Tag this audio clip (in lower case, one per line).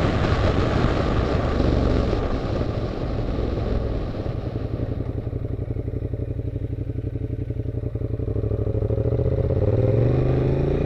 motorcycle